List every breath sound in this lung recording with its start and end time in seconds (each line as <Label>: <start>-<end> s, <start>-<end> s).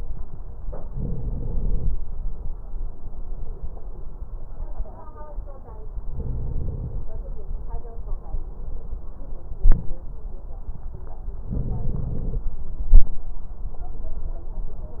Inhalation: 0.94-1.90 s, 6.14-7.10 s, 11.53-12.48 s
Crackles: 11.53-12.48 s